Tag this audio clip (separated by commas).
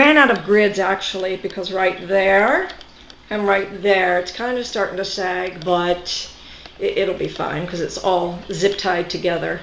Speech